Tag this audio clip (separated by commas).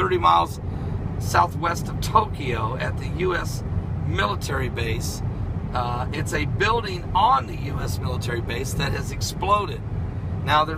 Speech